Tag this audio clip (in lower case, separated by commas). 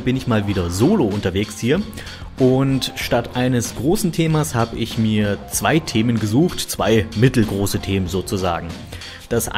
speech, music